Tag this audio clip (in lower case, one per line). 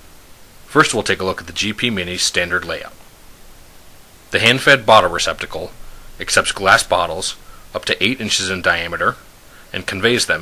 speech